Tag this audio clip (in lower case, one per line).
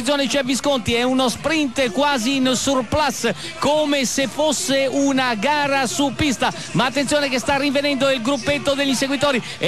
radio
speech